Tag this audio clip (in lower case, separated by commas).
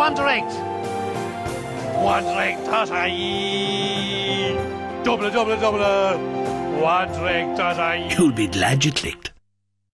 speech, music